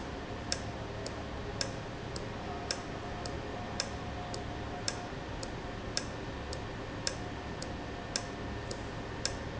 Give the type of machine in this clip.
valve